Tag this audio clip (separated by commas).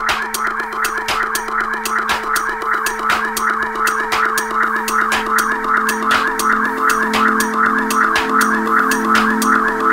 Music